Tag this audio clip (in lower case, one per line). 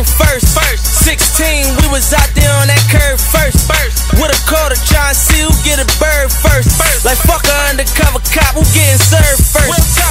music
rapping